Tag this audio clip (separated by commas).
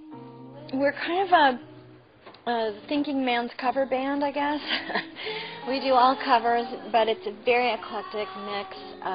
Speech, Music